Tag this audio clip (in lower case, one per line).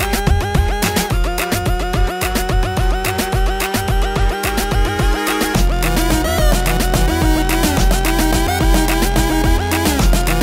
music